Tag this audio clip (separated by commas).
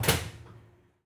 Slam, Door, Domestic sounds